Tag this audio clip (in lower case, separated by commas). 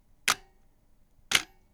camera, mechanisms